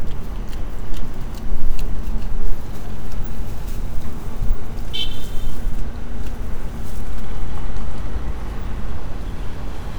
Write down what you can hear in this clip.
car horn